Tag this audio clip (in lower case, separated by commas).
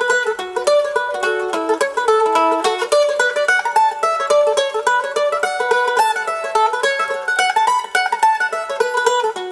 music, playing banjo, musical instrument, plucked string instrument, banjo, mandolin